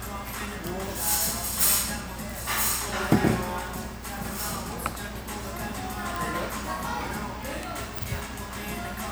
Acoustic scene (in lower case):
restaurant